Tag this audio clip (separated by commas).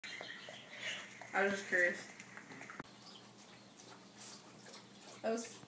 Speech